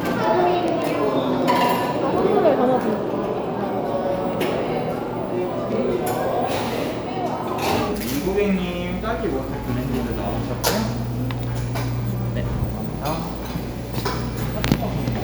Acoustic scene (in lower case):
cafe